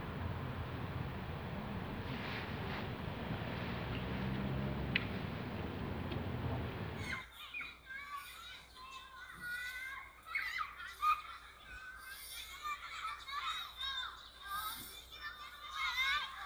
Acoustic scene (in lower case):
residential area